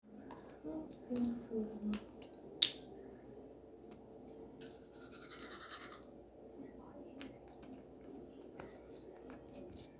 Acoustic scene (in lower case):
restroom